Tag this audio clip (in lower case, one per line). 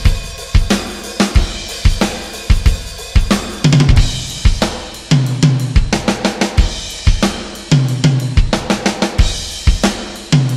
music
bass drum